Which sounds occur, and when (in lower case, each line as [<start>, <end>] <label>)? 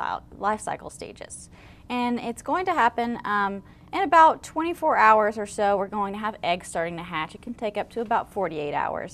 [0.00, 0.18] woman speaking
[0.00, 9.13] mechanisms
[0.31, 1.45] woman speaking
[1.48, 1.81] breathing
[1.82, 3.63] woman speaking
[3.60, 3.86] breathing
[3.86, 4.29] woman speaking
[4.42, 6.33] woman speaking
[6.43, 8.21] woman speaking
[8.00, 8.08] tick
[8.32, 9.13] woman speaking